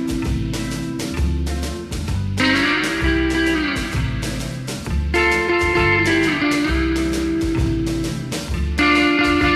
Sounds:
Blues, Musical instrument, Music

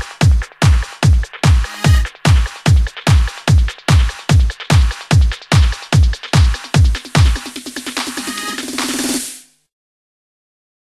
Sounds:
Music

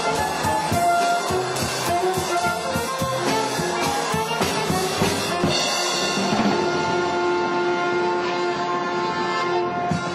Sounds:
Wind instrument

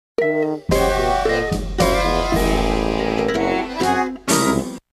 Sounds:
Music

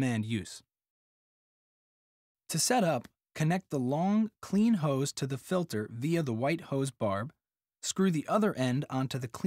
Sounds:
Speech

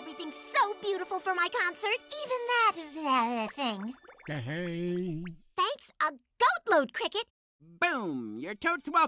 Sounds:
Speech, Music

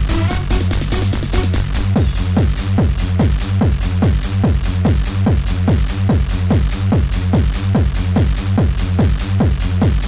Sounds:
Music

